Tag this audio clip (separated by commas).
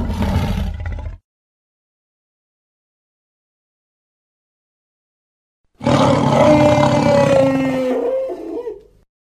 dinosaurs bellowing